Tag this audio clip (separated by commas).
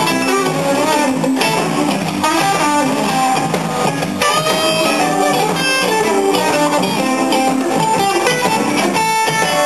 Bass guitar, Musical instrument, Music, Plucked string instrument, Guitar, Blues, Electric guitar, Strum